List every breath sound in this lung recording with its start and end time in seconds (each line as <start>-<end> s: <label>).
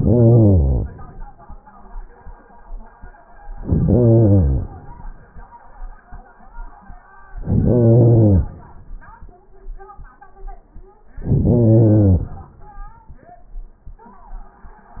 3.51-3.97 s: inhalation
3.96-5.68 s: exhalation
7.26-7.68 s: inhalation
7.69-9.38 s: exhalation
11.14-11.52 s: inhalation
11.54-13.33 s: exhalation